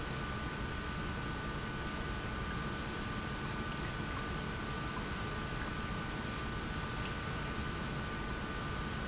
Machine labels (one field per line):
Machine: pump